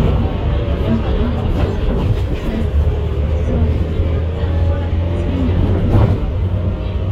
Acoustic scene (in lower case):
bus